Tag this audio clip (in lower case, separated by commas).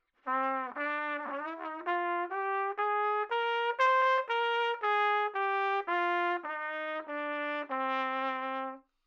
trumpet, musical instrument, brass instrument, music